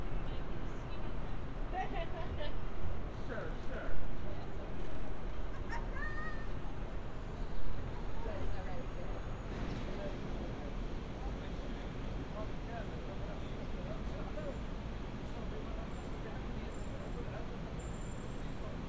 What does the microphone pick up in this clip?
person or small group talking